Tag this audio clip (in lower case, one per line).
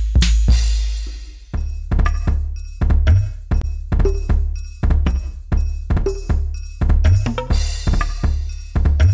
music